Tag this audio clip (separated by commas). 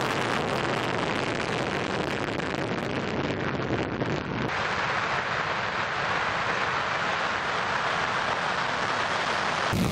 missile launch